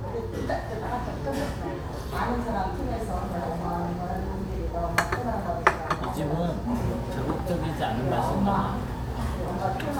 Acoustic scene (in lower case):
restaurant